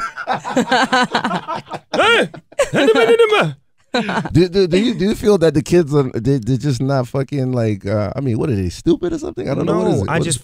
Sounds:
speech

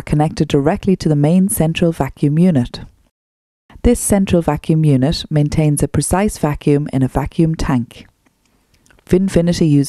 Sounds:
speech

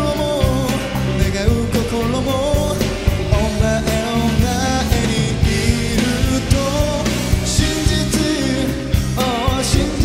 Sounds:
rock and roll
singing

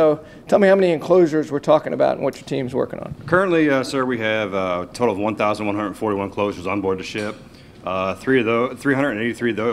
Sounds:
speech

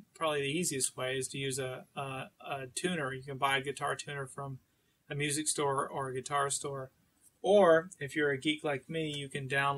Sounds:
speech

